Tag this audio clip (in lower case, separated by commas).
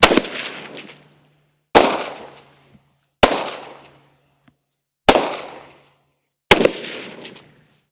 explosion